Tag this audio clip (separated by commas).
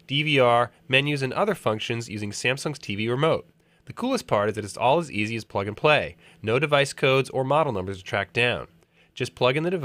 Speech